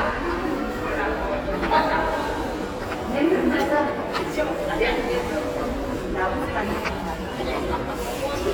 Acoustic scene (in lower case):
crowded indoor space